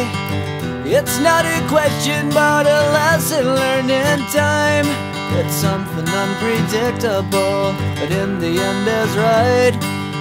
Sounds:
music

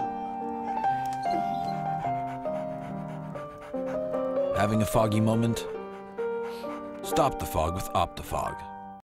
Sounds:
music, dog, speech

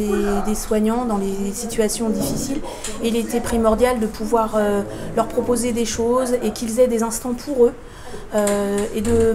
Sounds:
speech

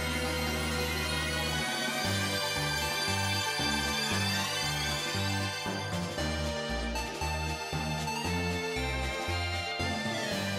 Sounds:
music

